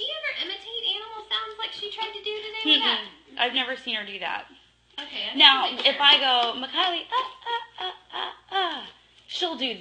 Two women speak over quiet smacks